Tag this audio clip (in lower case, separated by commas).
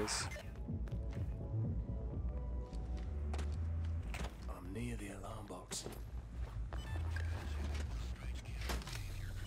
speech, music